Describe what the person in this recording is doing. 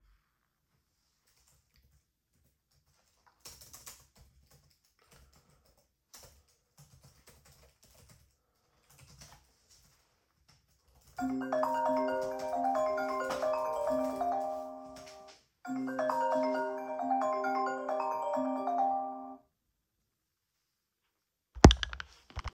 I typed on my laptop and the phone began to ring. I answered the phone.